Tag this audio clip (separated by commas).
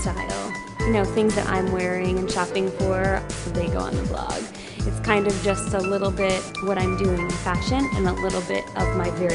Speech, Music